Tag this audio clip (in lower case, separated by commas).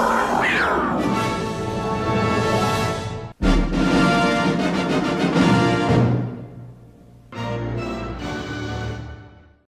music, television